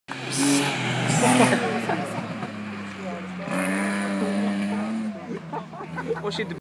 A motor vehicle engine is revving and people are talking and laughing